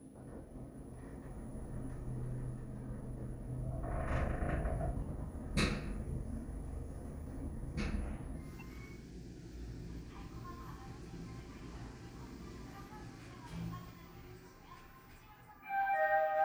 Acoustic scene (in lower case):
elevator